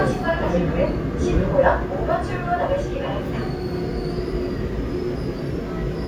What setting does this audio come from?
subway train